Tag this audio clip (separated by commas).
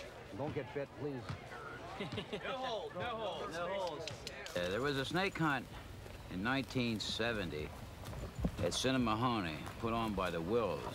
Speech